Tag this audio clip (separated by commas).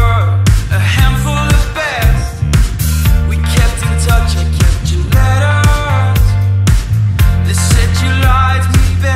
Music